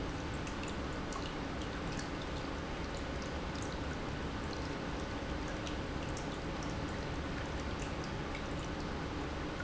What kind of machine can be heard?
pump